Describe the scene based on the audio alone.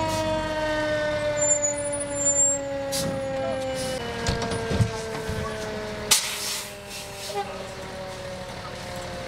Sirens and brakes squeezing